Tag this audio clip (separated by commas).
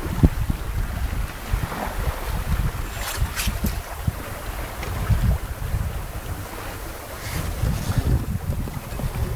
Wind, Sailboat, Ocean, Wind noise (microphone), Water vehicle